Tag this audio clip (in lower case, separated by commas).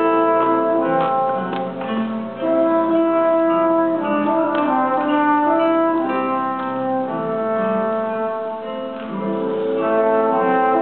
guitar, musical instrument, strum, plucked string instrument, music, acoustic guitar